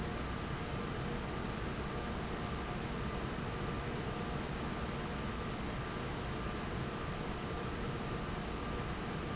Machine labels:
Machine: fan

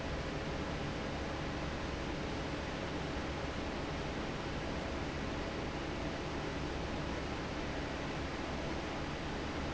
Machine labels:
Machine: fan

